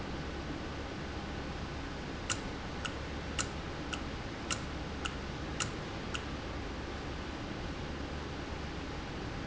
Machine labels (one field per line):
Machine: valve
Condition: normal